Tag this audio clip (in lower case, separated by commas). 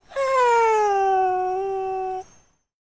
domestic animals, animal, dog